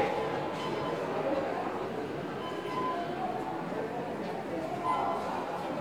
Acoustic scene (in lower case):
subway station